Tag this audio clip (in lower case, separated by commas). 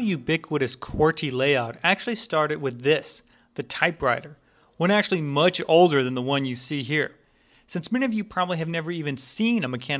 speech